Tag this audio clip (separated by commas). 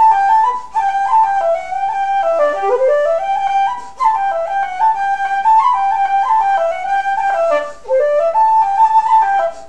Flute, Music